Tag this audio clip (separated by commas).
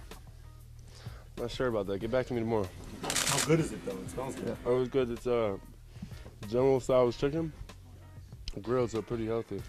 Music, Speech